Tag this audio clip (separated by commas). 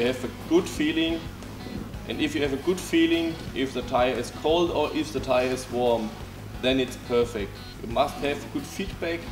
Speech, Music